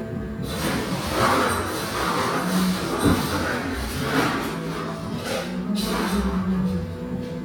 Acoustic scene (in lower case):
cafe